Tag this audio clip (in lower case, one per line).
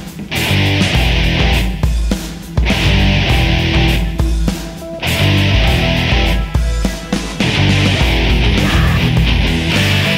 music